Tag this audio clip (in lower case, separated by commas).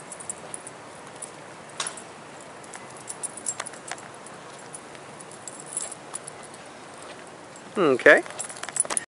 speech